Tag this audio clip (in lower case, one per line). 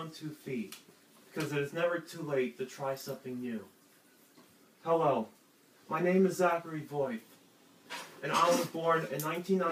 speech
male speech